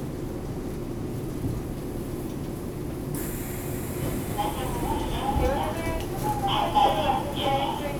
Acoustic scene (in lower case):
subway station